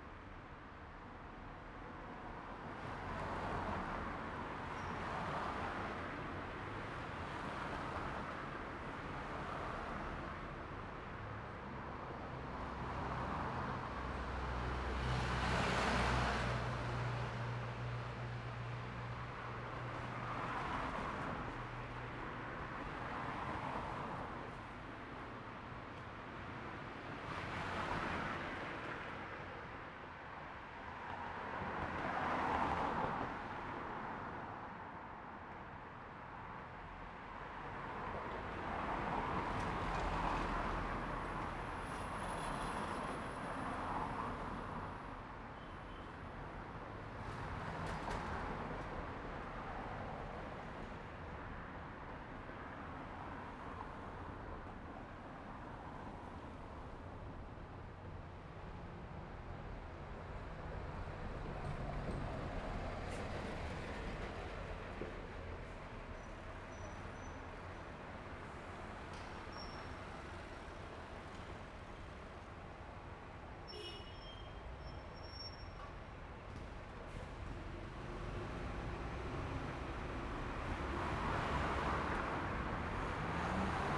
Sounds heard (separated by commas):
bus engine idling, bus brakes, bus compressor, motorcycle engine idling, car engine accelerating, car wheels rolling, bus engine accelerating, unclassified sound, motorcycle engine accelerating, bus wheels rolling, motorcycle, car, bus